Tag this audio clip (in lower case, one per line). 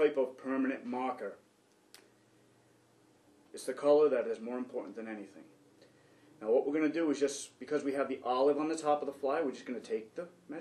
speech